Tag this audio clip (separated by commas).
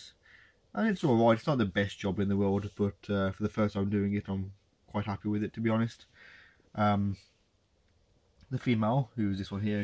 Speech